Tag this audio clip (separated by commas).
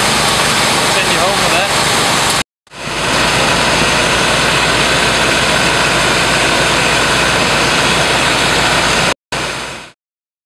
outside, urban or man-made